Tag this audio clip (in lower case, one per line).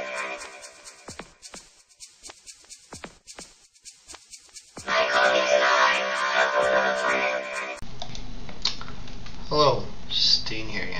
music
inside a small room
speech